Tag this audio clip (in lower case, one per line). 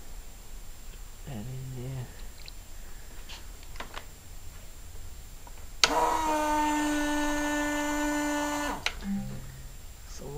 speech